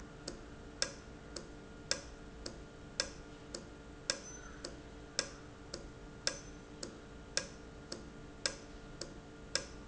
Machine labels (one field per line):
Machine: valve